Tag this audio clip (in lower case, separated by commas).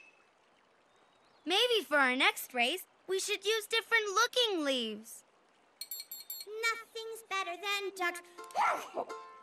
speech, music